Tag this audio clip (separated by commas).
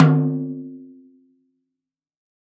Musical instrument, Percussion, Snare drum, Music, Drum